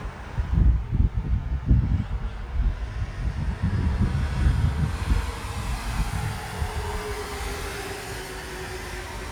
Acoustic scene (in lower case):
street